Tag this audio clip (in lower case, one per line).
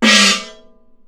musical instrument
gong
percussion
music